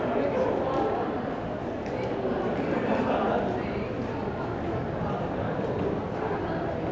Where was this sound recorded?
in a crowded indoor space